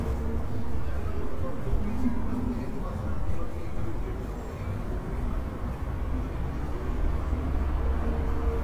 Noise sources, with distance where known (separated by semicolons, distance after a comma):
person or small group talking, far